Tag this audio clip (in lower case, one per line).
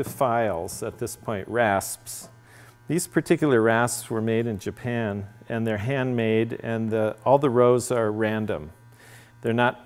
speech